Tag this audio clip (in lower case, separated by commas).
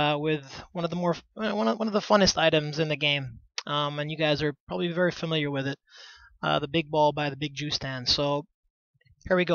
speech